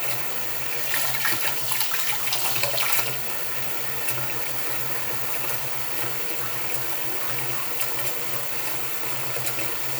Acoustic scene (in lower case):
restroom